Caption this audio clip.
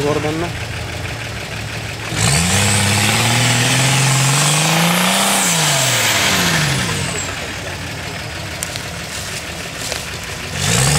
The engine is starting as someone talks in a low voice